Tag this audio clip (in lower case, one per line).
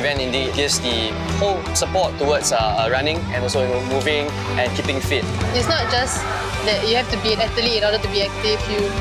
speech
music